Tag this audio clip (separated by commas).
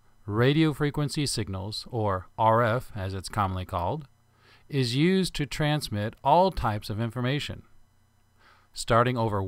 Speech